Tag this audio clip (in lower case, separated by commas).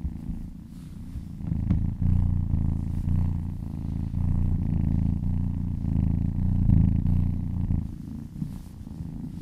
cat purring